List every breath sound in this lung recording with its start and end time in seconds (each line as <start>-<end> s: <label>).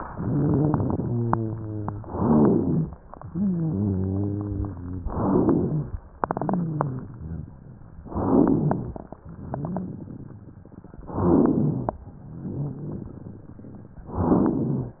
0.00-1.06 s: inhalation
0.00-1.06 s: crackles
1.00-2.01 s: rhonchi
1.99-3.06 s: inhalation
1.99-3.06 s: crackles
3.15-5.01 s: rhonchi
5.07-6.04 s: inhalation
5.07-6.04 s: crackles
6.39-7.40 s: rhonchi
8.14-9.15 s: inhalation
8.14-9.15 s: crackles
9.35-10.58 s: crackles
11.06-11.97 s: inhalation
11.06-11.97 s: crackles
12.18-13.97 s: crackles
14.15-15.00 s: inhalation
14.15-15.00 s: crackles